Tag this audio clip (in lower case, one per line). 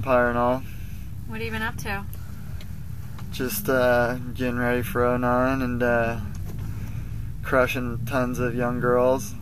speech